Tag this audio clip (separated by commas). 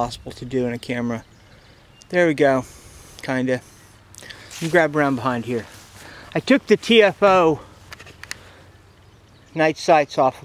Speech